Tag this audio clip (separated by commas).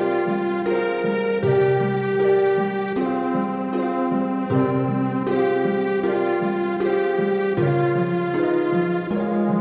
Theme music, Music, Rhythm and blues